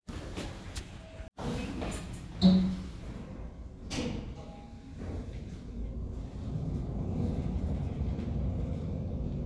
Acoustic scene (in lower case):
elevator